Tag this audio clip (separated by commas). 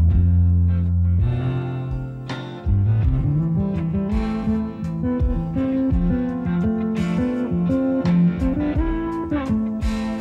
Blues, Music